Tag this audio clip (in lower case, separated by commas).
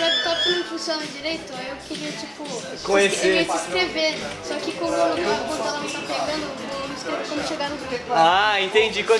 speech, music